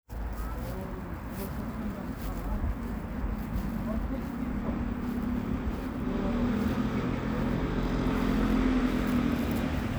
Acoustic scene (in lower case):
residential area